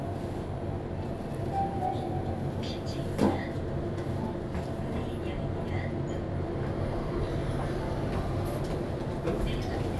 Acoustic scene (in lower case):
elevator